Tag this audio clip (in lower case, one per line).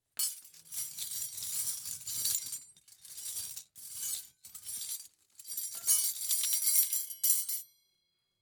home sounds
silverware